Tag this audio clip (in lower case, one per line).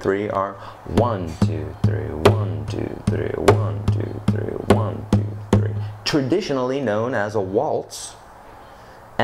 speech